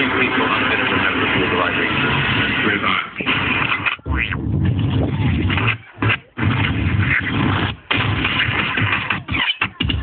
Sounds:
Speech, Music

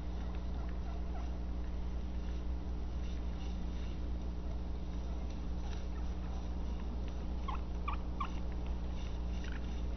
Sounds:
Gobble, Turkey, Fowl

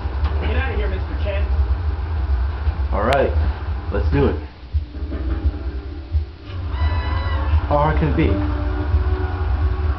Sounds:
Music, Speech

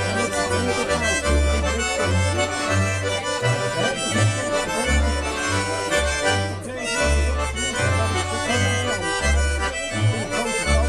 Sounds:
Speech, Music

